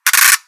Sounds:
Music, Mechanisms, Percussion, pawl, Musical instrument

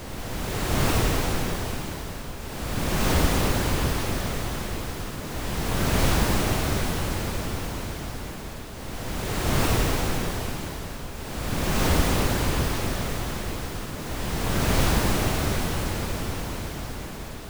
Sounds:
Water, Waves, Ocean

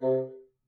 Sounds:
Music, Musical instrument, Wind instrument

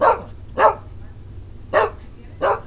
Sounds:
Animal, Dog, Bark, Domestic animals

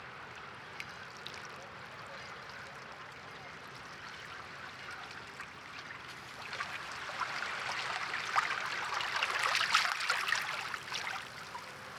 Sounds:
Water, Waves, Ocean

